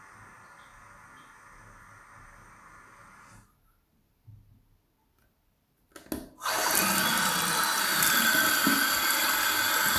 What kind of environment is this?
restroom